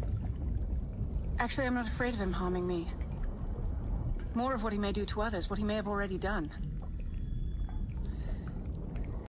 Woman speaking worriedly